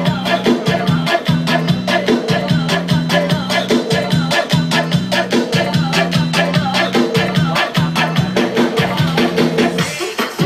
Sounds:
Music

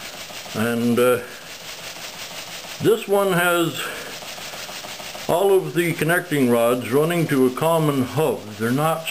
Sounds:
Speech

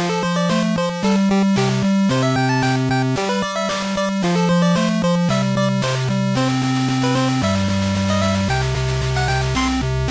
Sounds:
Music, Soundtrack music

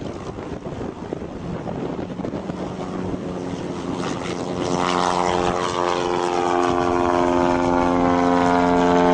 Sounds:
Vehicle

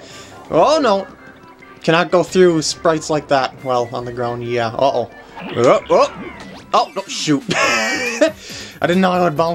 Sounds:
Speech, Music

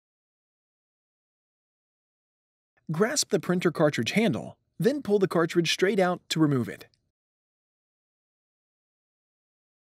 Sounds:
Speech

